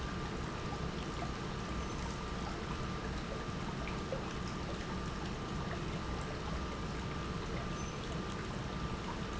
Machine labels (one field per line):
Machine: pump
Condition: normal